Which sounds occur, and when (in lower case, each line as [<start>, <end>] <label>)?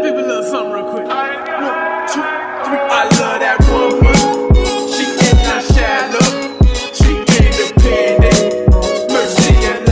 [0.00, 1.07] man speaking
[0.00, 9.91] music
[0.92, 1.01] tick
[1.07, 4.39] male singing
[1.39, 1.48] tick
[1.53, 1.71] man speaking
[2.12, 2.26] man speaking
[2.62, 2.79] man speaking
[4.91, 6.37] male singing
[6.89, 8.51] male singing
[9.06, 9.91] male singing